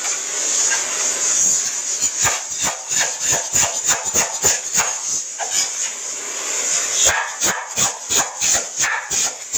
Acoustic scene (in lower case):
kitchen